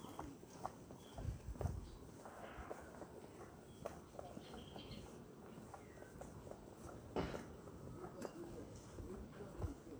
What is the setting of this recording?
residential area